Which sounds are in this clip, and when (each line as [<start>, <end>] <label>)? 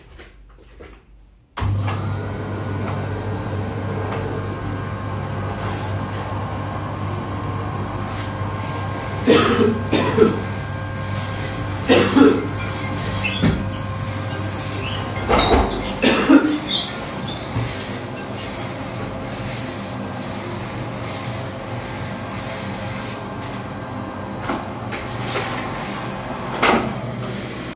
[0.04, 1.55] footsteps
[1.50, 27.72] vacuum cleaner
[11.81, 19.06] phone ringing